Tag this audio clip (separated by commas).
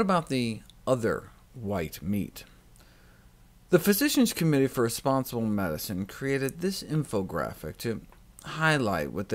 Speech